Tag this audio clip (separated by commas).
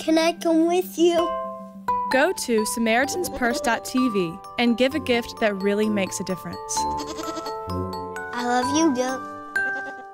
Music, Speech, Animal, pets, Child speech, Goat